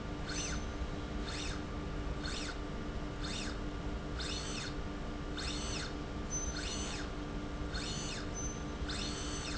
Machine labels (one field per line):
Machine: slide rail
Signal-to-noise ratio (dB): -6 dB